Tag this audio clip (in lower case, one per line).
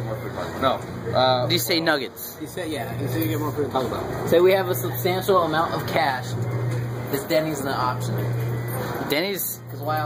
speech